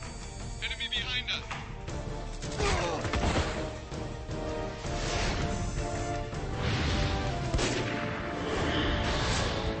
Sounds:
speech, music

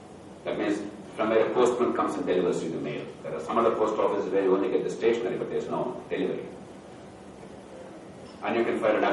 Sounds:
monologue, man speaking, speech

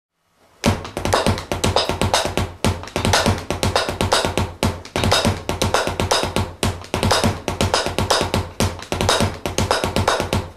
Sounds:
percussion, music, bass drum, musical instrument

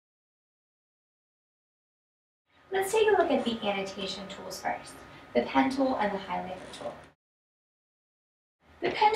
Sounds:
speech

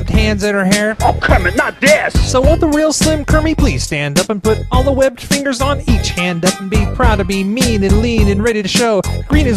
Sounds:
music

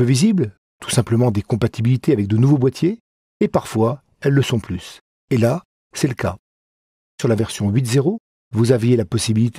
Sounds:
speech

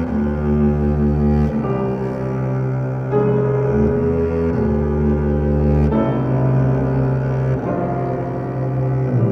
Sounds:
playing double bass

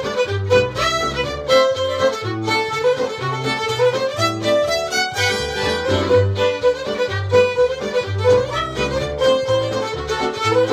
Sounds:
violin, musical instrument, music

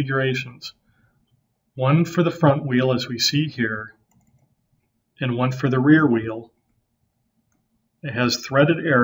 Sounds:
speech

